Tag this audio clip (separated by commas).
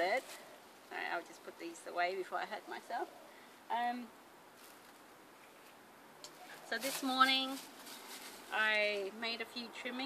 Speech